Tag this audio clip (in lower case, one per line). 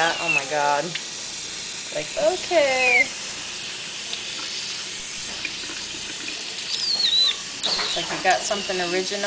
pets
speech
animal